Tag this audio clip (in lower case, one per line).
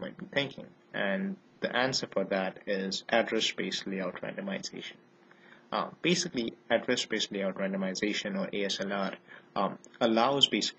speech